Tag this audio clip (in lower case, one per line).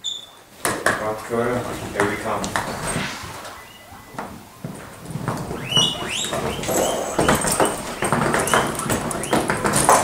speech